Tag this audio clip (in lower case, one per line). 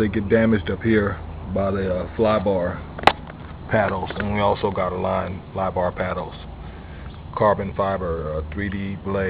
speech